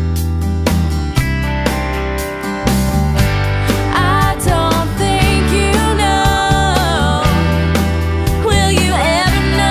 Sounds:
rhythm and blues
music

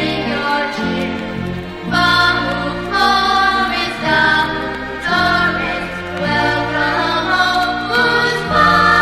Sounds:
music

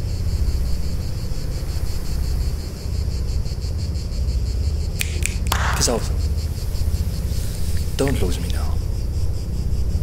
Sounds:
speech
male speech

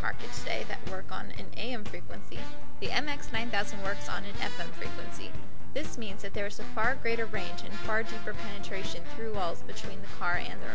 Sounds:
music
speech

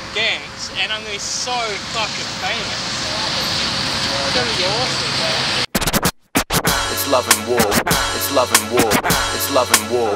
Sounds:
speech
music

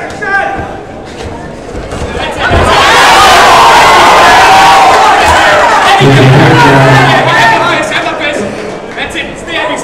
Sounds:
crowd

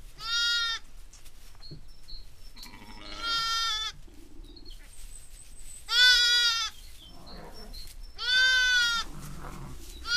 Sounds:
sheep
bleat
sheep bleating

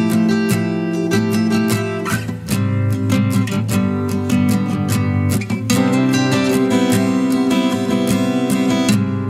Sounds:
music

